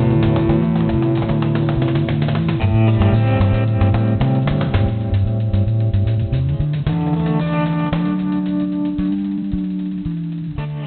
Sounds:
music

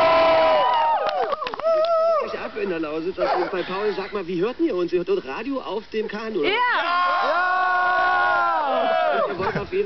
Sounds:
speech

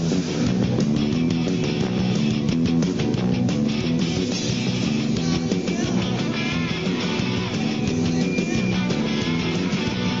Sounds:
music

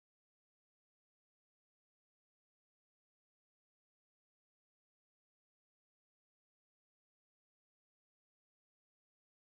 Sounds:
silence

